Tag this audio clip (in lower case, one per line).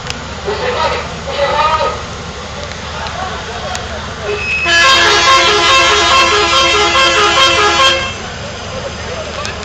vehicle
speech